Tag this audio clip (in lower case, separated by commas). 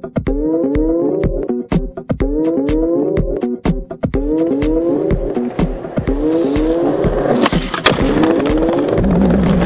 music, skateboard